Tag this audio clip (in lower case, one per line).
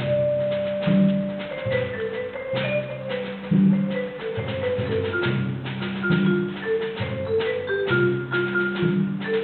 percussion
music